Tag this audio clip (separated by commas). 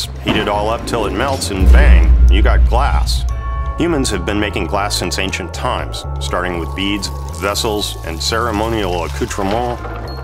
Speech, Music